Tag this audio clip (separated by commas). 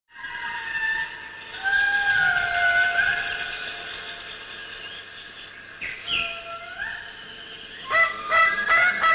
outside, rural or natural, Animal